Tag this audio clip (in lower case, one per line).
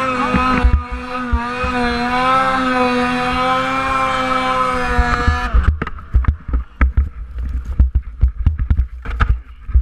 driving snowmobile